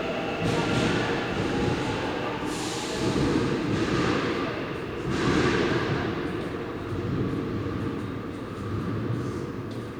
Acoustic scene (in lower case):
subway station